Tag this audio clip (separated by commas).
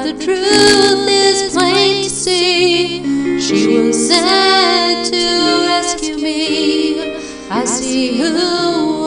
Music